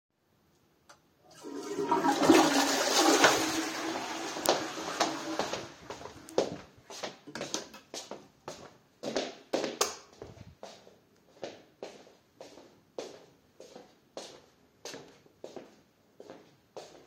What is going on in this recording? I flushed the toilet, then walked out of the toilet room. While I was walking to the bedroom, I turned the lights there on. Continued walking.